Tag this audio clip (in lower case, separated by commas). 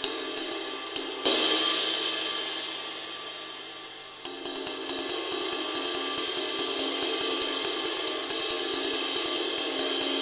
music